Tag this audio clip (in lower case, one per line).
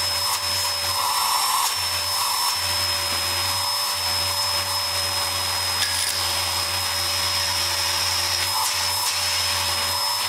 vacuum cleaner